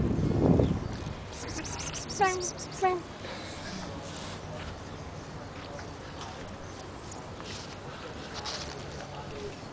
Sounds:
speech, outside, urban or man-made

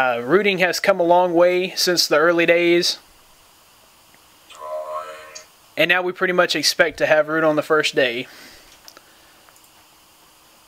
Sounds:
speech

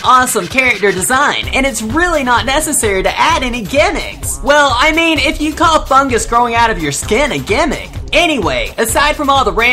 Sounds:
music, speech

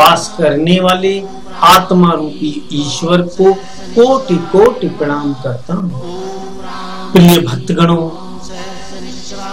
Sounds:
mantra, speech

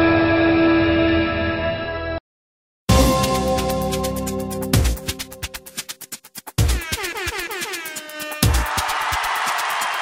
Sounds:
exciting music, music

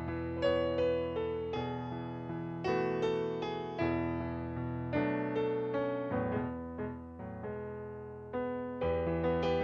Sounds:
music

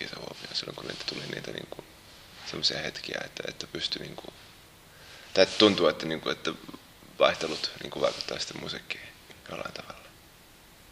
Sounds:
speech

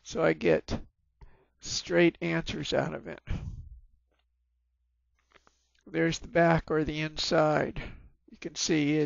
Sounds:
speech

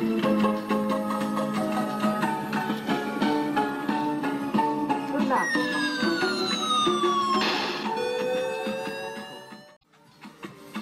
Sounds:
music, speech

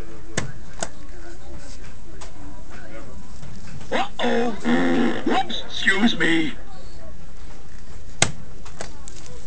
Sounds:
speech

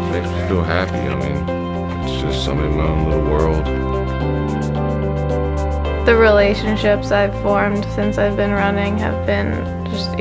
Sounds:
speech, music

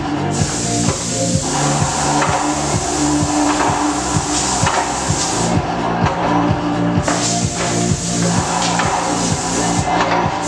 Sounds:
spray, music

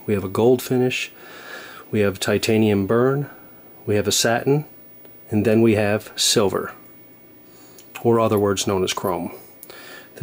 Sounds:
speech

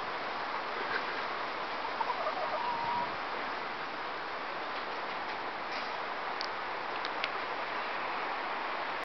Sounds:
cluck, chicken, fowl

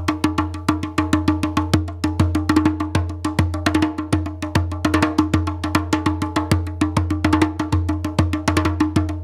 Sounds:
playing djembe

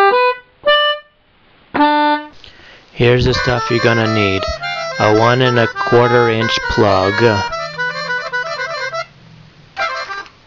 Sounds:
speech, music

